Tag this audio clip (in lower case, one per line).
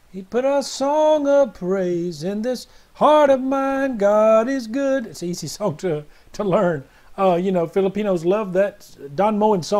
speech